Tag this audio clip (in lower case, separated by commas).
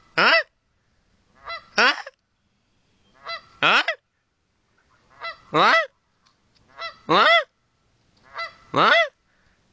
fowl, goose, honk